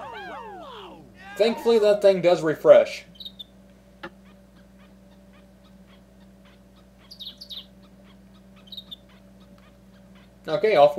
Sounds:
inside a small room
speech

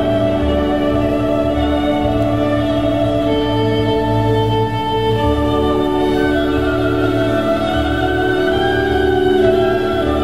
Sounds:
music
traditional music
musical instrument
classical music

